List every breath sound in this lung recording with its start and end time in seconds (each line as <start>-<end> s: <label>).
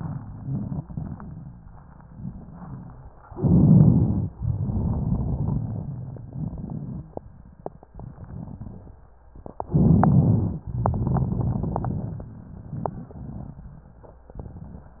0.00-3.08 s: crackles
3.32-4.27 s: inhalation
3.32-4.27 s: crackles
4.36-6.21 s: exhalation
4.36-7.17 s: crackles
7.93-9.13 s: crackles
9.71-10.65 s: inhalation
9.71-10.65 s: crackles
10.76-12.35 s: exhalation
10.76-14.29 s: crackles